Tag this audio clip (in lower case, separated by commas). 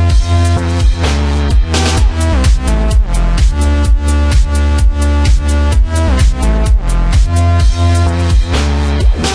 music, dubstep, electronic music